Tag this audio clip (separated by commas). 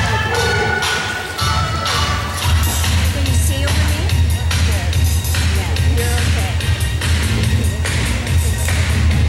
Speech, Music